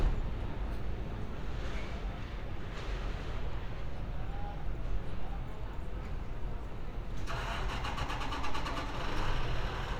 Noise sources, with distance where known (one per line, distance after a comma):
large-sounding engine, near